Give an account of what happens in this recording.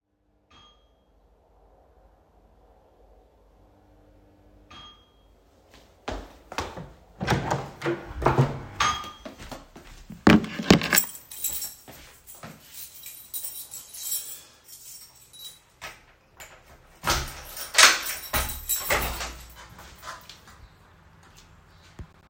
Someone buzzed up my apartment ring bell. I walked and opened the door to the hallway. I took the key of the my apartment door and then unlocked the door. Subsequently I opened the unlocked door.